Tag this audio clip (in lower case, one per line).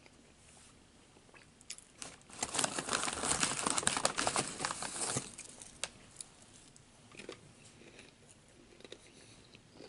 people eating crisps